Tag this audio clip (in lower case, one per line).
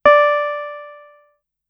piano
keyboard (musical)
musical instrument
music